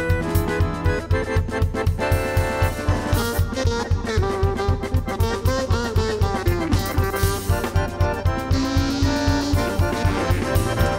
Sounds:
Percussion, Musical instrument, Music, Accordion

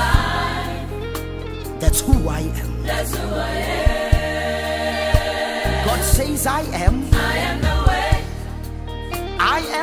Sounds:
Music, Gospel music

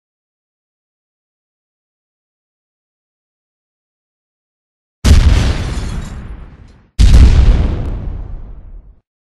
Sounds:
pop, Explosion

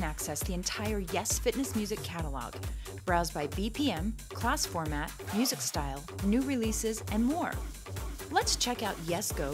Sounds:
Music, Speech, Soundtrack music

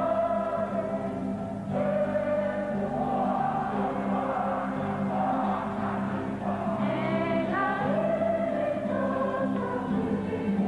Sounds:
Choir

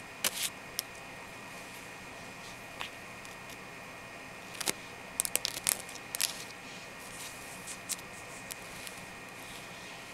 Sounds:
Scratching (performance technique)

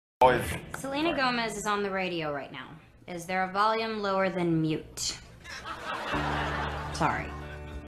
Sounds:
Music, Speech

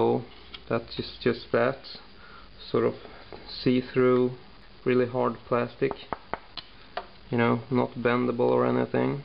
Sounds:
inside a small room, Speech

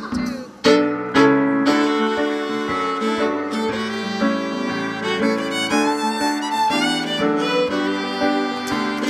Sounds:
Music, fiddle, Musical instrument, Country

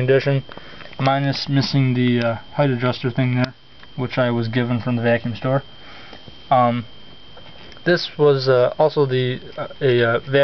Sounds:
Speech

